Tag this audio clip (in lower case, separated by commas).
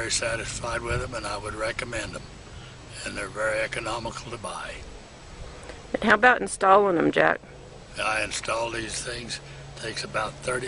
speech